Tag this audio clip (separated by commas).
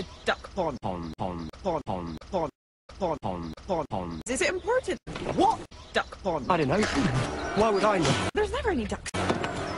Music, Speech